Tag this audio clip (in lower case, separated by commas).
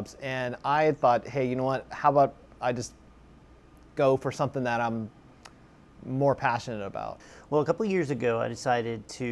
speech